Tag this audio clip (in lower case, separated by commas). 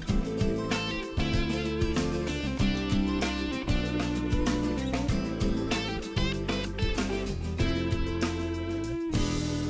music